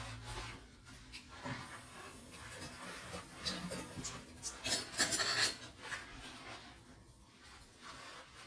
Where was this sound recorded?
in a kitchen